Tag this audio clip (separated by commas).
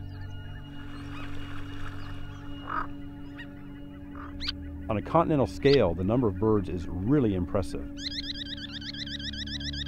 Speech, Music, Bird